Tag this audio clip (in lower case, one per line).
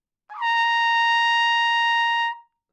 music
brass instrument
musical instrument
trumpet